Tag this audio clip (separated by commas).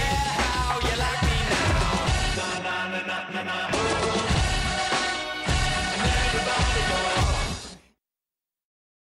Music